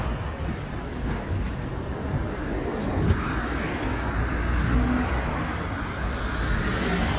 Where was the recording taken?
on a street